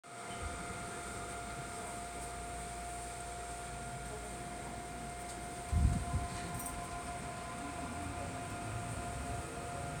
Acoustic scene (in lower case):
subway train